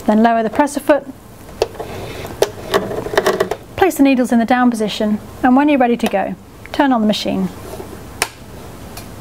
Women speaking followed by tapping and more speech